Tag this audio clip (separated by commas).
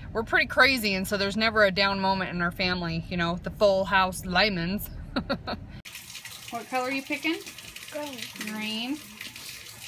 Speech